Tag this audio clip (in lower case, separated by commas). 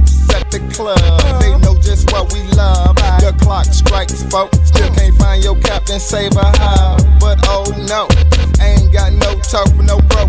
music